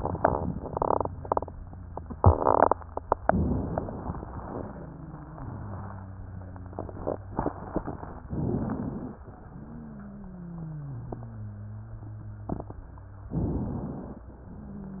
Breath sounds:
3.24-4.44 s: inhalation
4.54-8.24 s: wheeze
8.26-9.18 s: inhalation
9.44-13.30 s: wheeze
13.32-14.27 s: inhalation
14.40-15.00 s: wheeze

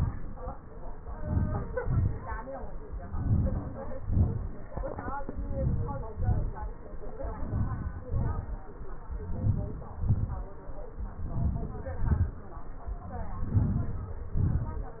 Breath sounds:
1.21-1.72 s: inhalation
1.85-2.27 s: exhalation
3.21-3.69 s: inhalation
4.05-4.55 s: exhalation
5.51-6.01 s: inhalation
6.17-6.59 s: exhalation
7.44-7.90 s: inhalation
8.12-8.58 s: exhalation
9.41-9.91 s: inhalation
10.08-10.54 s: exhalation
11.30-11.86 s: inhalation
12.09-12.51 s: exhalation
13.58-14.09 s: inhalation
14.46-14.89 s: exhalation

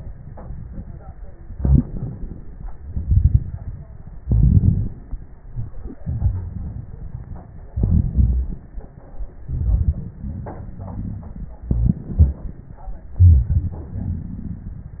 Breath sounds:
1.55-2.53 s: inhalation
2.88-3.86 s: exhalation
2.88-3.86 s: crackles
4.28-4.95 s: inhalation
4.28-4.95 s: crackles
6.03-7.47 s: exhalation
6.03-7.47 s: crackles
7.77-8.63 s: inhalation
7.77-8.63 s: crackles
9.49-11.64 s: exhalation
9.49-11.64 s: crackles
11.65-12.84 s: inhalation
11.65-12.84 s: crackles
13.21-15.00 s: exhalation
13.21-15.00 s: crackles

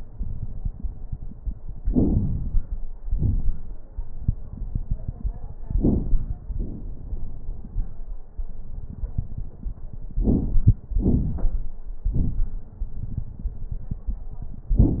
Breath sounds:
1.77-2.75 s: inhalation
1.77-2.75 s: crackles
3.08-3.75 s: exhalation
3.08-3.75 s: crackles
5.71-6.38 s: inhalation
5.71-6.38 s: crackles
6.49-7.73 s: exhalation
6.49-7.73 s: crackles
10.12-10.76 s: inhalation
10.12-10.76 s: crackles
10.88-11.76 s: exhalation
10.88-11.76 s: crackles

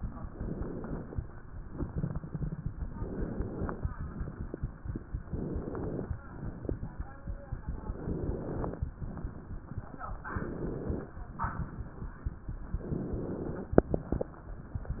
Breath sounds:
0.32-1.25 s: inhalation
2.94-3.87 s: inhalation
5.26-6.19 s: inhalation
7.84-8.77 s: inhalation
10.27-11.20 s: inhalation
12.85-13.78 s: inhalation

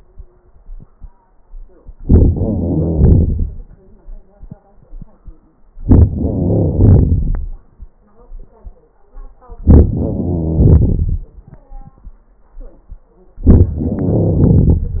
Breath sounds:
2.02-2.30 s: inhalation
2.29-3.68 s: exhalation
2.32-3.47 s: crackles
5.82-6.12 s: inhalation
6.13-7.50 s: crackles
6.13-7.67 s: exhalation
9.66-9.92 s: inhalation
9.93-11.27 s: crackles
9.93-11.43 s: exhalation
13.45-13.72 s: inhalation
13.71-15.00 s: exhalation
13.71-15.00 s: crackles

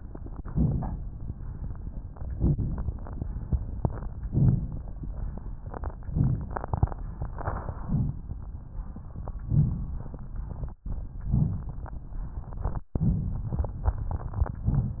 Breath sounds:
0.43-1.03 s: inhalation
0.45-1.05 s: crackles
2.40-3.00 s: inhalation
2.40-3.00 s: crackles
4.27-4.79 s: inhalation
6.07-6.59 s: inhalation
7.73-8.31 s: inhalation
9.50-10.02 s: inhalation
11.28-11.85 s: inhalation
11.28-11.85 s: crackles

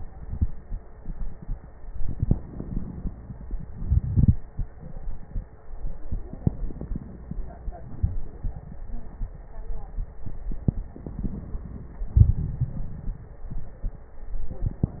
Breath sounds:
1.78-3.66 s: crackles
1.81-3.68 s: inhalation
3.68-5.64 s: exhalation
3.68-5.64 s: crackles
5.68-7.85 s: inhalation
5.68-7.85 s: crackles
10.17-12.06 s: crackles
10.19-12.09 s: inhalation
12.08-14.12 s: exhalation
12.08-14.12 s: crackles

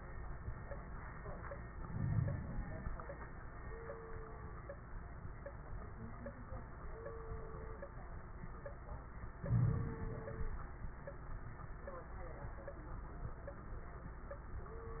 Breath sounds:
1.76-2.93 s: inhalation
1.76-2.93 s: crackles
9.38-10.54 s: inhalation
9.38-10.54 s: crackles

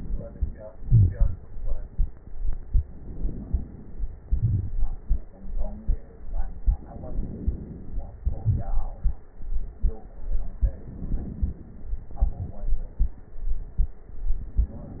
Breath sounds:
0.80-1.43 s: exhalation
2.81-4.22 s: inhalation
4.18-5.01 s: crackles
4.22-5.04 s: exhalation
6.75-8.22 s: inhalation
8.22-8.99 s: exhalation
8.22-8.99 s: crackles
10.54-11.96 s: inhalation
11.95-13.49 s: exhalation
11.95-13.49 s: crackles
14.37-15.00 s: inhalation

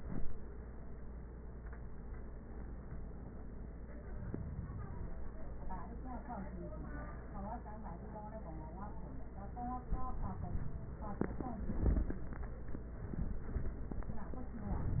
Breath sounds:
No breath sounds were labelled in this clip.

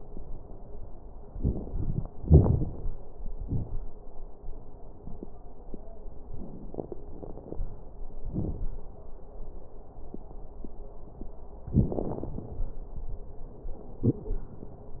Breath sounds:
1.31-2.07 s: inhalation
1.31-2.07 s: crackles
2.22-2.98 s: exhalation
2.22-2.98 s: crackles

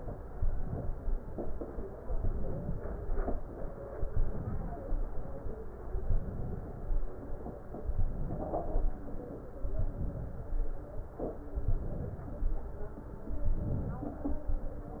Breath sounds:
0.38-1.17 s: inhalation
2.14-2.93 s: inhalation
3.98-4.77 s: inhalation
6.05-6.84 s: inhalation
8.09-8.88 s: inhalation
9.75-10.54 s: inhalation
11.69-12.48 s: inhalation
13.45-14.24 s: inhalation

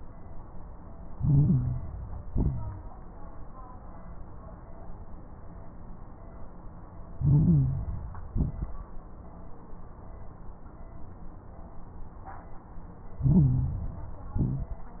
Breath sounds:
1.02-2.14 s: inhalation
1.12-1.78 s: stridor
2.24-2.85 s: exhalation
2.24-2.85 s: crackles
7.12-8.24 s: inhalation
7.16-7.83 s: stridor
8.30-8.91 s: exhalation
8.30-8.91 s: crackles
13.19-13.85 s: stridor
13.19-14.31 s: inhalation
14.37-14.97 s: exhalation
14.37-14.97 s: crackles

